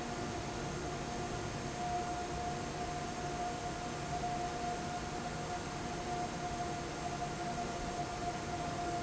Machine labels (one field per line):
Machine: fan